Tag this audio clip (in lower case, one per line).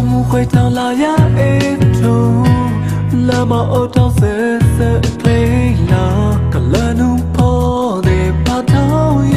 music